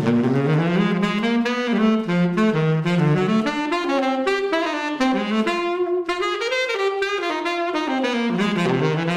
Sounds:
woodwind instrument, playing saxophone, musical instrument, jazz, music, saxophone, trumpet

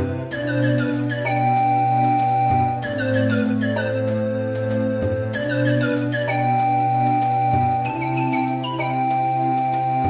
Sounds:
music, soundtrack music

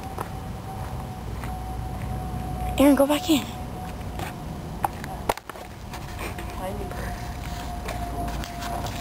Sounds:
kid speaking, speech, outside, urban or man-made

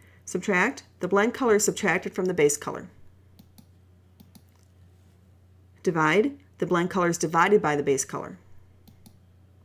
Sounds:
clicking, speech

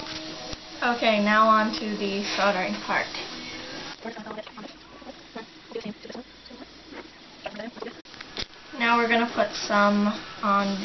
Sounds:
music, speech

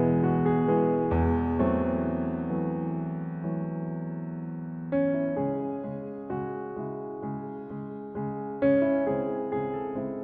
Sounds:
music

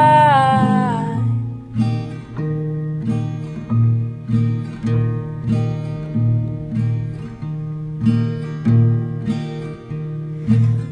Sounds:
music

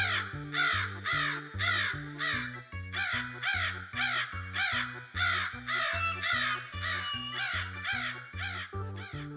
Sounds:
crow cawing

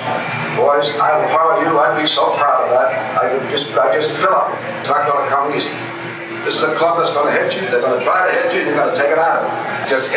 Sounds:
male speech, monologue, music, speech

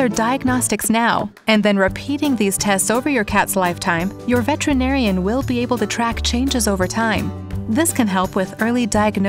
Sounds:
music, speech

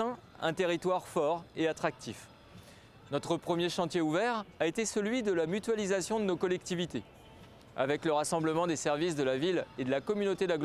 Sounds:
speech

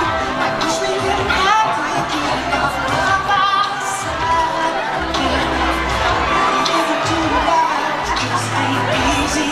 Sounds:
speech, music, crowd

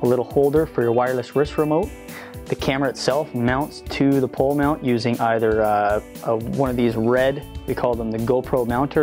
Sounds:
speech, music

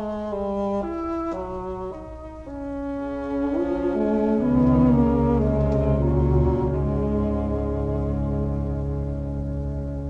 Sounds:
music, saxophone

